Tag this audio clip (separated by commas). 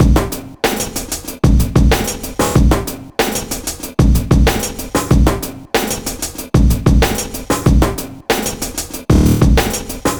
Music, Musical instrument, Percussion, Drum kit